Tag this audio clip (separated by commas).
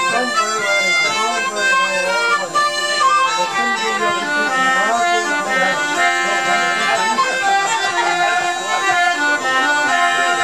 Music, Speech